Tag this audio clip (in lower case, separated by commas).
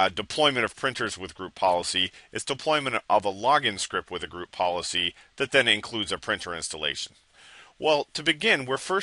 speech